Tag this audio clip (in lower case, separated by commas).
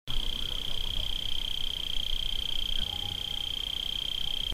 animal, wild animals, insect